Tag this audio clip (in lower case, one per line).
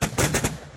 explosion